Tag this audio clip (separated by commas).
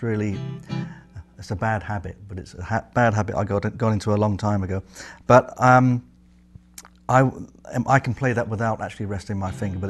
Acoustic guitar, Music, Speech, Musical instrument, Plucked string instrument, Guitar